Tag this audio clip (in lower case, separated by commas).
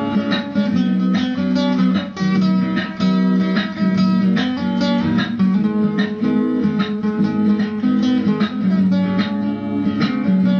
plucked string instrument, music, strum, guitar, musical instrument, playing acoustic guitar, acoustic guitar